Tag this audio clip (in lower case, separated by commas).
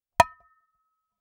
dishes, pots and pans, domestic sounds